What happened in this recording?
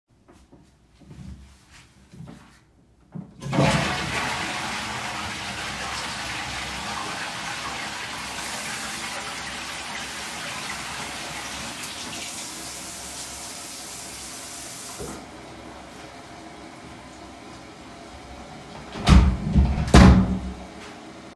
flushed the toilet, washed my hands with soap, dried it with a towel then left the bathroom and closed the door.